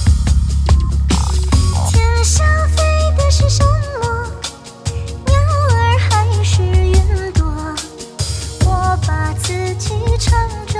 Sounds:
Music

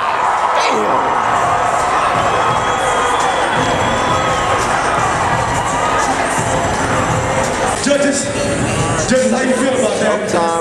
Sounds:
Cheering, Speech, Music

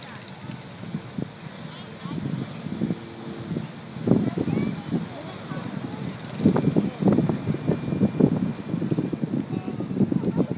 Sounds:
Speech

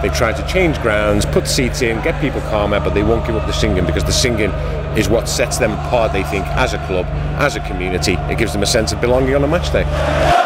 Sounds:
Speech

